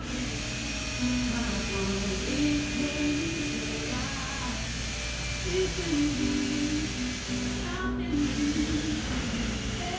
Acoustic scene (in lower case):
cafe